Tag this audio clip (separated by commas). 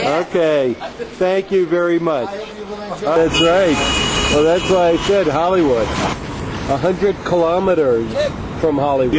Speech